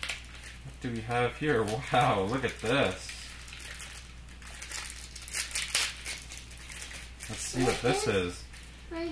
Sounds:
Speech, inside a small room

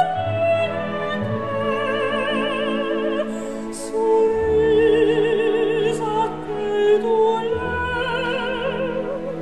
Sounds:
Opera, Music

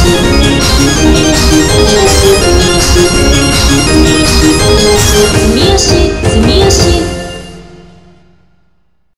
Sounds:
Techno, Music, Electronic music

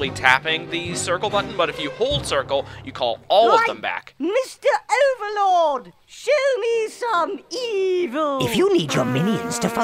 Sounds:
Speech, Music

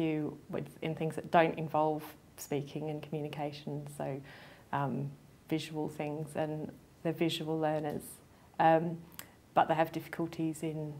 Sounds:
Speech, Narration, woman speaking

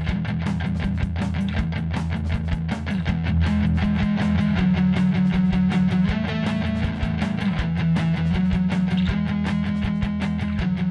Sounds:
Music

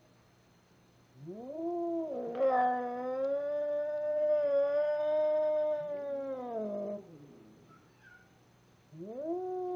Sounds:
Cat, pets, Caterwaul, Animal

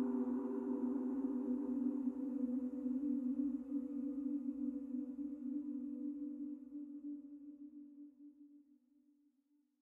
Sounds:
Music

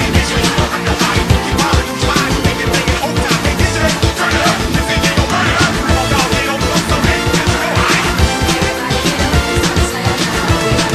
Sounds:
Music

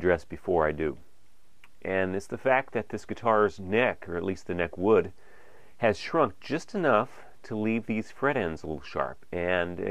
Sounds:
Speech

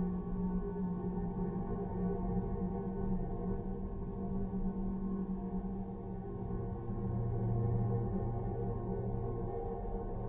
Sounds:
Music

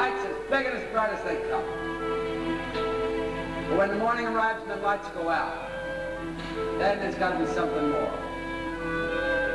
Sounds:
man speaking, Music, Narration, Speech

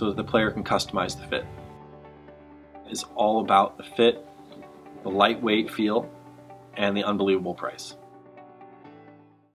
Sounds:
Speech, Music

